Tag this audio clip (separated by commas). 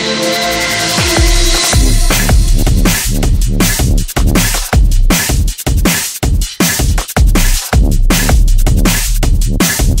Music, Drum and bass